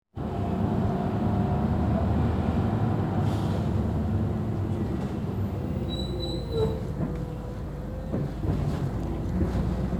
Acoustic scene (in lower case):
bus